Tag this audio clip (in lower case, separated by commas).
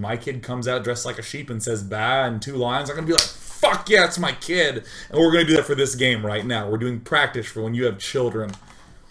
speech